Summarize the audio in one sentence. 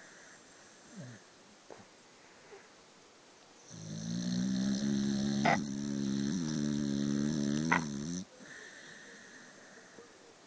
A person snoring